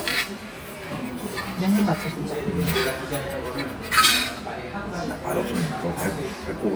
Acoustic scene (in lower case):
crowded indoor space